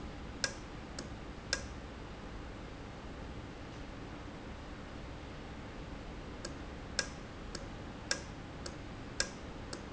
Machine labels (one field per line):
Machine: valve